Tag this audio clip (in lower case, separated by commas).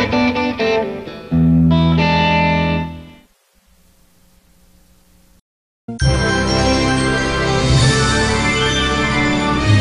music, television